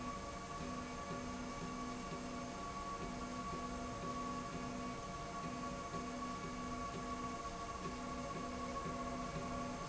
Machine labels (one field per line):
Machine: slide rail